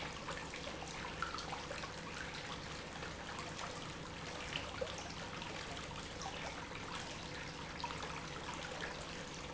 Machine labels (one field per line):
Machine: pump